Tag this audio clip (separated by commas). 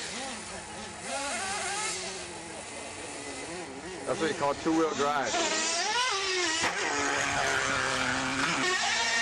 Car, Speech